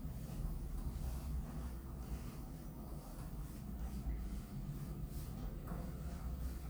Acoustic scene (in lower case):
elevator